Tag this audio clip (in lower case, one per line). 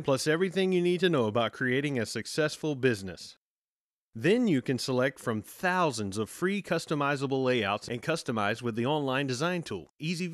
speech